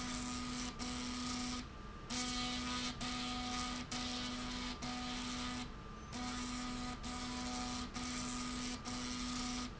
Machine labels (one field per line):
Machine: slide rail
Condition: abnormal